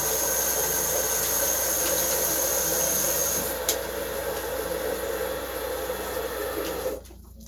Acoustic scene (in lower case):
restroom